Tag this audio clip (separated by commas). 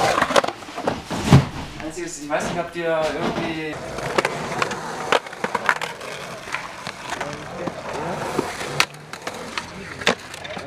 Skateboard, Speech